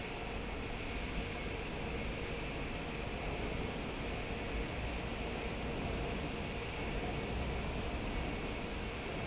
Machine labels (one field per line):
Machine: fan